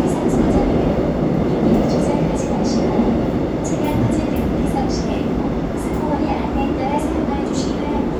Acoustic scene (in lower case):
subway train